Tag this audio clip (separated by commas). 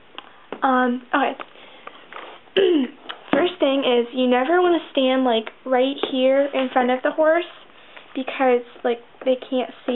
inside a small room, Speech